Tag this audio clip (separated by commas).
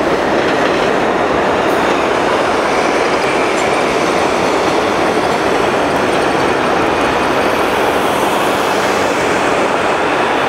Vehicle, outside, urban or man-made, Bus